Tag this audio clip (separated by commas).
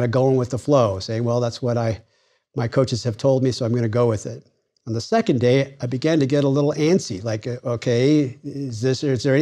Speech